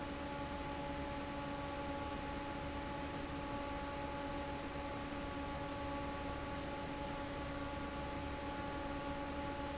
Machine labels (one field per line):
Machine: fan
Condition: normal